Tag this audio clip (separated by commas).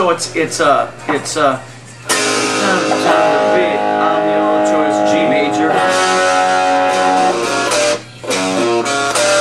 Guitar, Music, Plucked string instrument, Strum, Electric guitar, Musical instrument, Speech